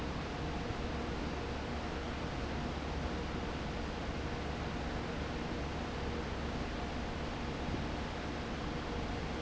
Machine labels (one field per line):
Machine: fan